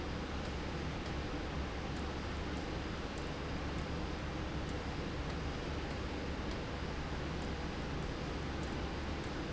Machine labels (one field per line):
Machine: slide rail